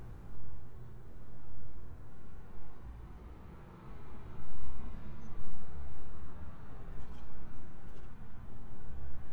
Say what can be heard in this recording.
background noise